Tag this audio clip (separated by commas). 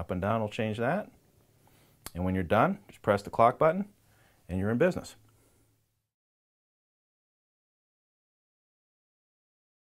Speech